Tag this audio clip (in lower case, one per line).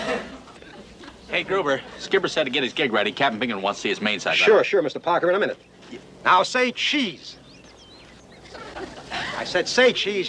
speech